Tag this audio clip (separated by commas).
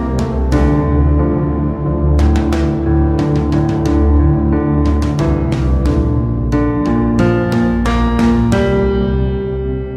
Music, Ambient music